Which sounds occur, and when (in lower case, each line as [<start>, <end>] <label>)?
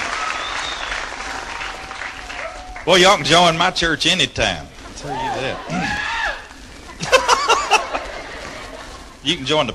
[0.00, 2.84] applause
[0.00, 2.84] cheering
[0.00, 9.74] mechanisms
[0.28, 0.94] whistling
[2.85, 4.68] male speech
[4.94, 5.59] male speech
[4.94, 6.52] cheering
[5.62, 6.08] throat clearing
[6.82, 9.18] laughter
[9.23, 9.74] male speech